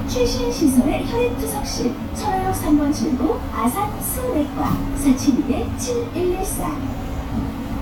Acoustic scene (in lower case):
bus